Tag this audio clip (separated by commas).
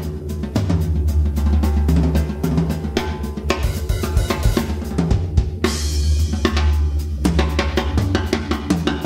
Bass drum, Percussion, Drum kit, Musical instrument, Music, Snare drum, Drum, Cymbal, Hi-hat